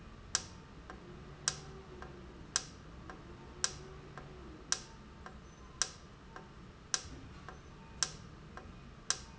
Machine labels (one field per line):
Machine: valve